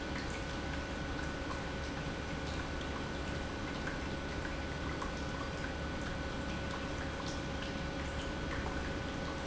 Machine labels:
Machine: pump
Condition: normal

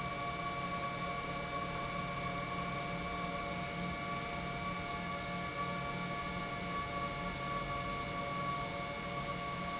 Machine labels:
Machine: pump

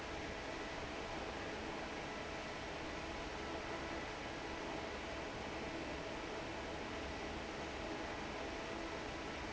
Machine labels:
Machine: fan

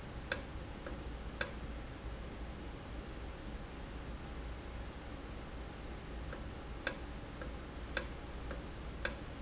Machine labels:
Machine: valve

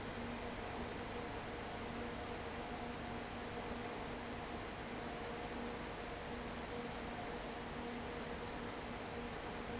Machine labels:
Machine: fan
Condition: abnormal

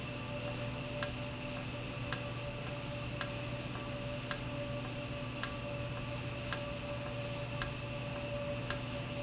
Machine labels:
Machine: valve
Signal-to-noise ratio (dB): -6 dB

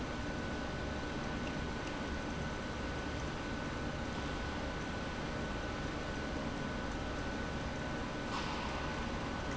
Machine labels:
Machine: pump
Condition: abnormal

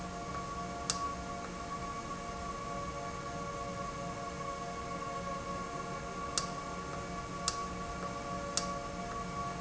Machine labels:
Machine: valve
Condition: normal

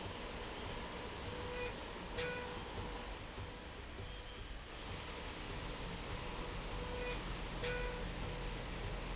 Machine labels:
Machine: slide rail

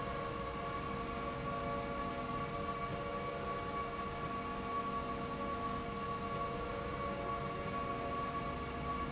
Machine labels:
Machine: slide rail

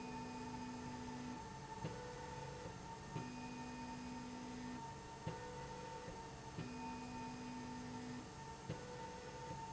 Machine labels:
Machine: slide rail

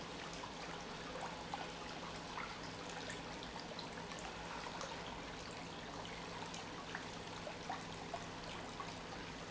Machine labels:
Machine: pump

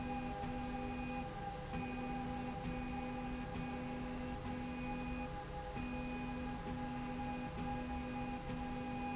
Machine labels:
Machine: slide rail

